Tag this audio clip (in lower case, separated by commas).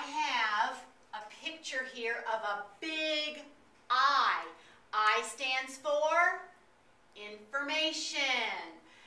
speech